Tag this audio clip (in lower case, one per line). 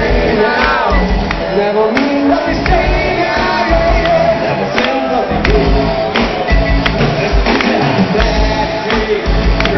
inside a public space
singing
music